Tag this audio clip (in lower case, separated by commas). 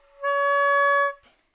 woodwind instrument, musical instrument, music